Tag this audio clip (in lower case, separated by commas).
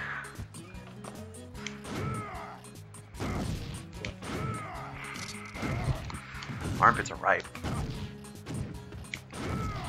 speech, music